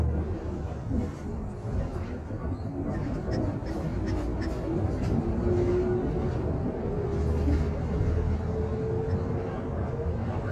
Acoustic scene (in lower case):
bus